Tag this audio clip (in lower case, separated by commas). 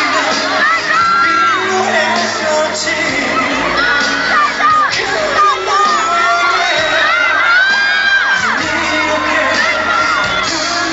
male singing, speech, music